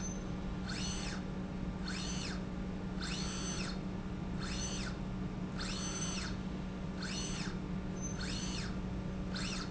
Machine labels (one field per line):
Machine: slide rail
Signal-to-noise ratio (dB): -6 dB